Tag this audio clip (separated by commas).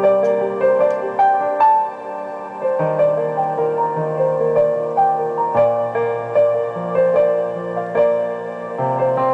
Music